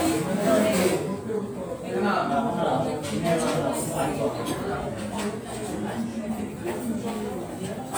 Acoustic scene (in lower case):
restaurant